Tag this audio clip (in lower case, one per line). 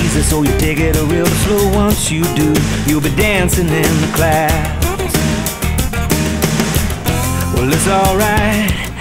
music